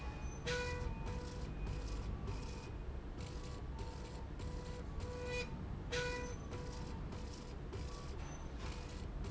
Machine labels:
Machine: slide rail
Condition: normal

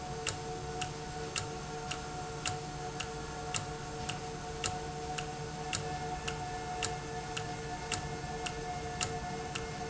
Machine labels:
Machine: valve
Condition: normal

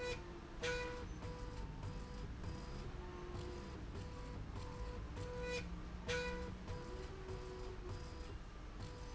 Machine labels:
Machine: slide rail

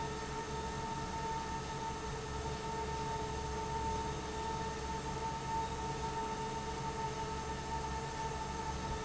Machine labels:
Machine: fan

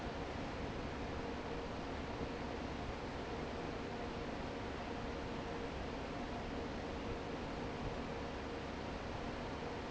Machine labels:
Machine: fan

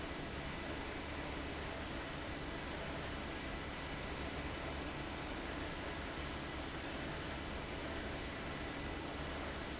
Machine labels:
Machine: fan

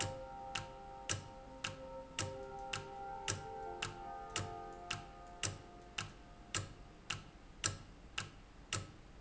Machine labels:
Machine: valve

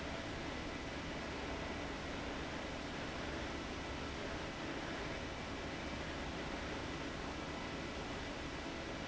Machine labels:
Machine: fan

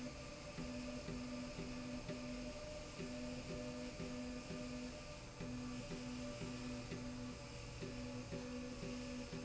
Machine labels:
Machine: slide rail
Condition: normal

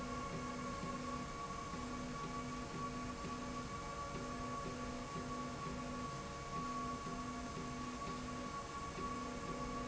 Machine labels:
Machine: slide rail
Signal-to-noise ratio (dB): 0 dB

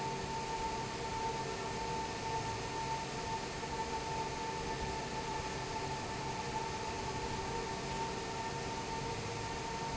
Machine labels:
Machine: fan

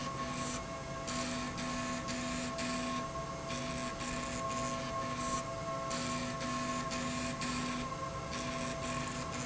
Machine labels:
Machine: slide rail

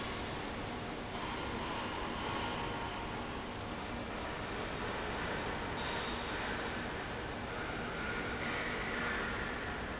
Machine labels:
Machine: fan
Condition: abnormal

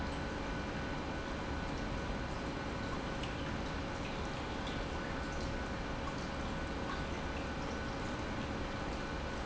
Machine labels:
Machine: pump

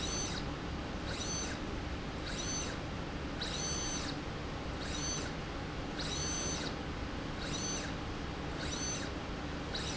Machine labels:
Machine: slide rail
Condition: abnormal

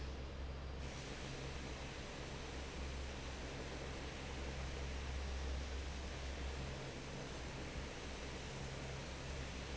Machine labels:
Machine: fan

